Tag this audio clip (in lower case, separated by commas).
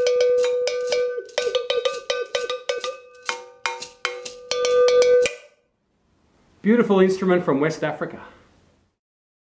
percussion, speech, music, musical instrument